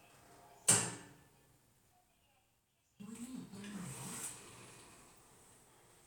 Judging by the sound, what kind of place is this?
elevator